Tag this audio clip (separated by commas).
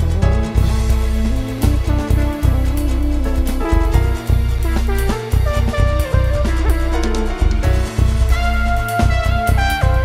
Musical instrument, Guitar, Plucked string instrument, Strum, Music